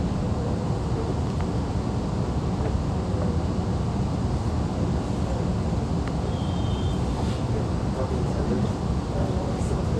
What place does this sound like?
subway train